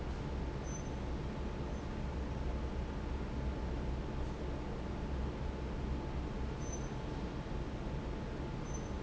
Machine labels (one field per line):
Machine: fan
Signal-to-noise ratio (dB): -6 dB